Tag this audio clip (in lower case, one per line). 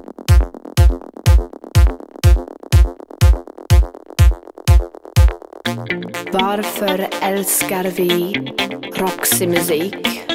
music
drum machine